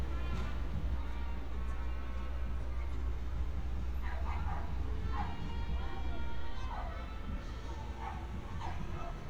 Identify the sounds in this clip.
dog barking or whining